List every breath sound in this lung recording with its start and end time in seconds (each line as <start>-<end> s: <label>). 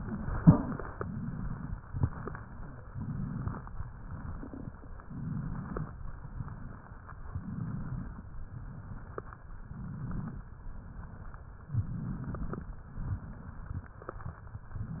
0.00-0.85 s: exhalation
0.92-1.72 s: inhalation
1.77-2.80 s: exhalation
2.89-3.64 s: inhalation
3.64-5.04 s: exhalation
5.09-5.83 s: inhalation
5.89-7.30 s: exhalation
7.30-8.20 s: inhalation
8.22-9.63 s: exhalation
9.63-10.49 s: inhalation
10.52-11.71 s: exhalation
11.78-12.64 s: inhalation
12.81-14.54 s: exhalation
14.64-15.00 s: inhalation